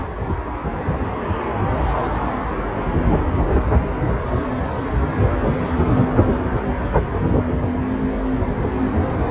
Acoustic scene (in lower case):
street